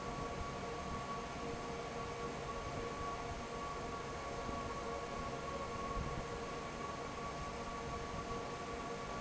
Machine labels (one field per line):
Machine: fan